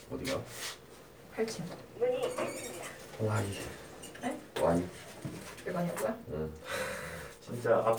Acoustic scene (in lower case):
elevator